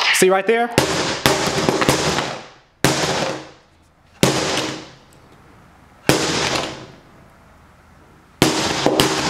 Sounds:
Speech, inside a small room

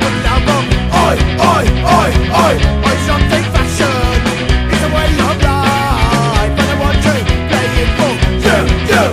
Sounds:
Music

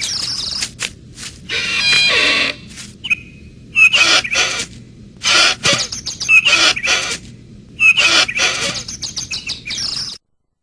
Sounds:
Bird, Chirp, bird call

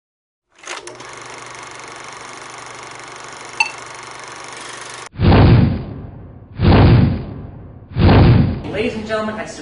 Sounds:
Speech

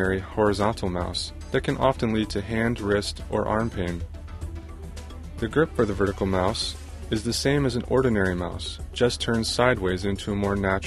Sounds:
Speech, Music

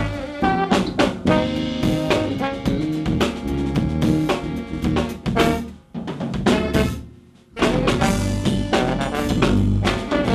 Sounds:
Music

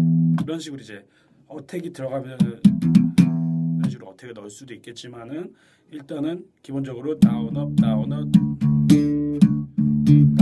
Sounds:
Bass guitar, Guitar, Music, Musical instrument, Speech

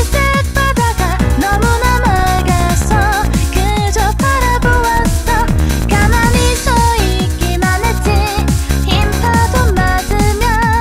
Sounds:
Music, Female singing

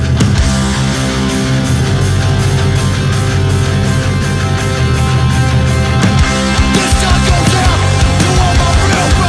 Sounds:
Heavy metal

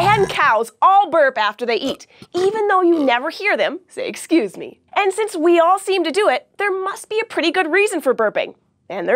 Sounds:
Speech

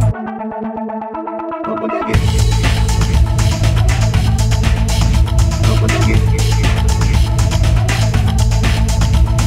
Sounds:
Music

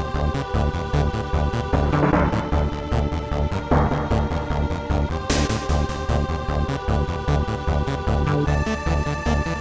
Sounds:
Music

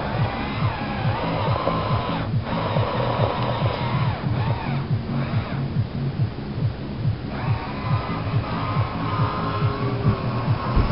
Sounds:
Music

